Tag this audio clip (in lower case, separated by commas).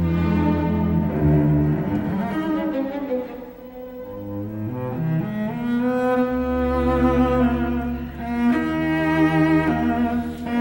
double bass, cello, music